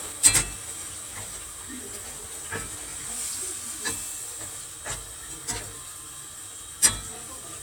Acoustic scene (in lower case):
kitchen